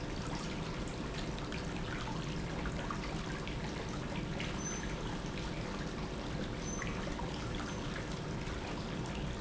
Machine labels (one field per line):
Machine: pump